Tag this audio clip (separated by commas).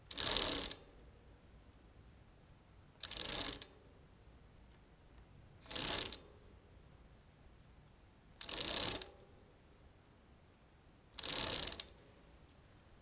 Bicycle, Vehicle